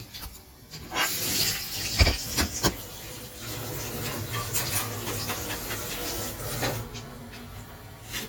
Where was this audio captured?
in a kitchen